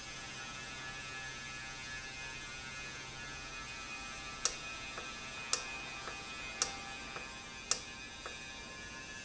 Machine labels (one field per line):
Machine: valve